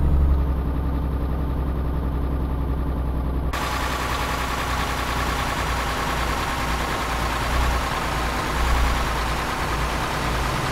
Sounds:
vehicle

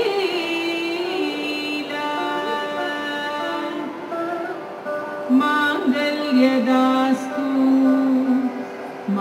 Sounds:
carnatic music, music

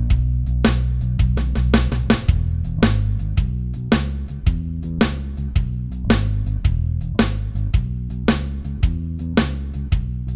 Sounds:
music

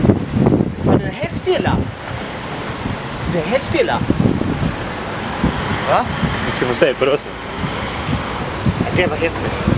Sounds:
speech

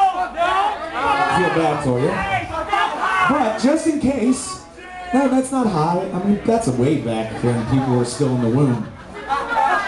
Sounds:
speech

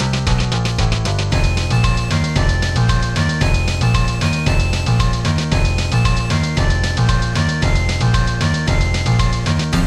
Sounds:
video game music, music

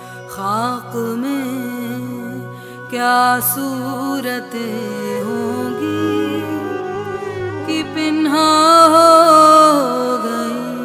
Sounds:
singing, music

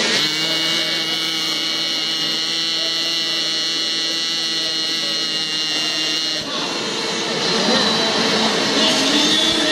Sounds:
music, speech

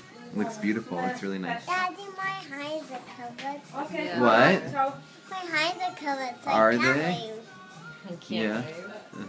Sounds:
child speech, music, speech

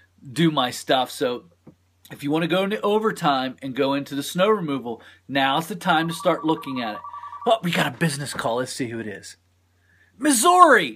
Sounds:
speech

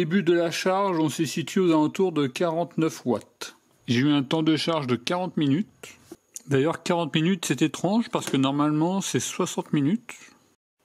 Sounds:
electric grinder grinding

